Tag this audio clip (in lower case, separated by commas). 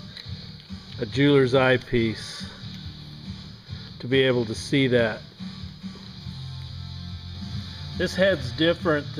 speech, music